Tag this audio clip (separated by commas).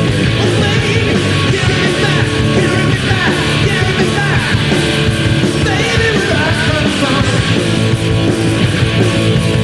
Rock and roll, Music, Roll